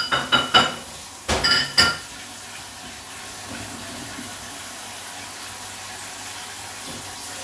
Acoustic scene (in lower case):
kitchen